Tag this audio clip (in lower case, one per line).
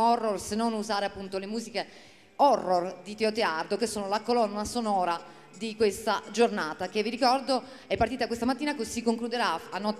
speech